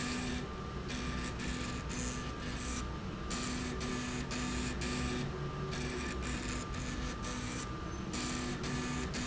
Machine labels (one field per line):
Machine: slide rail